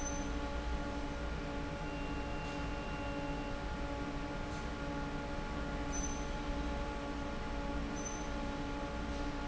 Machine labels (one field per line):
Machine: fan